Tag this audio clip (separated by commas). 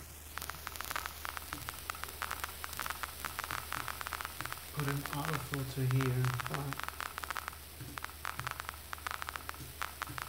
White noise